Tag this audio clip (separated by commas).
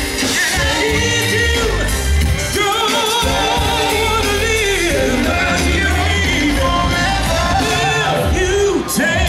Music of Latin America, Singing